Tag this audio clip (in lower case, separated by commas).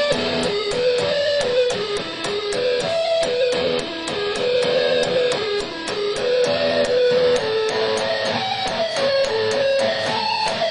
music